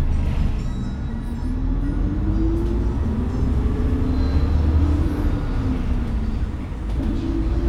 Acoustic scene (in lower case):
bus